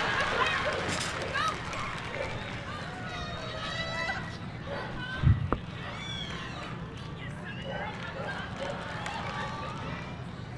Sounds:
Yip, Speech

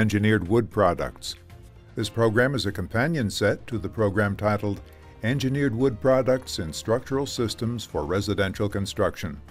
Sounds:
Music, Speech

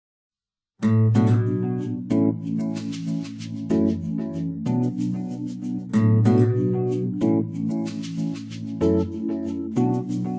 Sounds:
Acoustic guitar

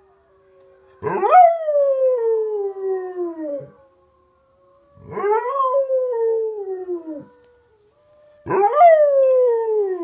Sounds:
pets, dog bow-wow, Bark, Animal, Bow-wow, Dog

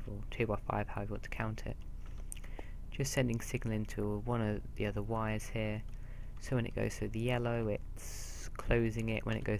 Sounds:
Speech

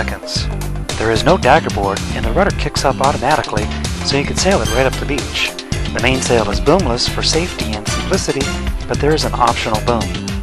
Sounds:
Speech, Music

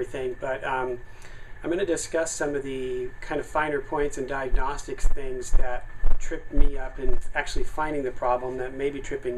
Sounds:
Speech

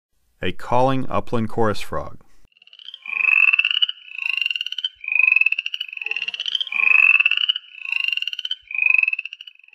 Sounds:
Croak, frog croaking, Frog

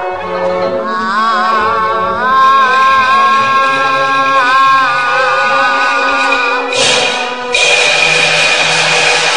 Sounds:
Ping, Music

